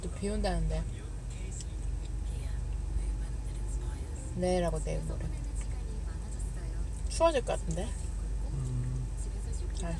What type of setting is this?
car